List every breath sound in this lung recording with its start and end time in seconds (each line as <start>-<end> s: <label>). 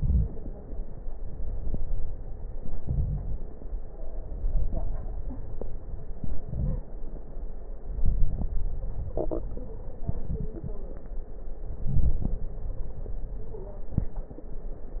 0.00-1.03 s: inhalation
0.00-1.03 s: crackles
1.01-2.62 s: exhalation
1.04-2.62 s: crackles
2.63-3.93 s: inhalation
2.63-3.93 s: crackles
3.98-6.39 s: exhalation
3.98-6.39 s: crackles
6.41-7.04 s: inhalation
6.41-7.04 s: crackles
7.85-8.63 s: inhalation
7.85-8.63 s: crackles
11.77-13.76 s: inhalation
12.54-12.94 s: stridor
13.38-13.93 s: stridor
13.74-15.00 s: exhalation